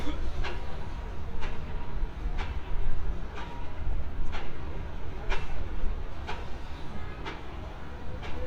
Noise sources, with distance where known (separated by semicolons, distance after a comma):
pile driver